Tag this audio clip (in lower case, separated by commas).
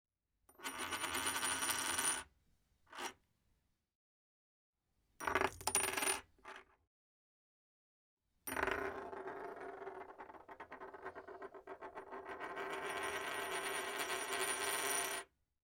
coin (dropping), home sounds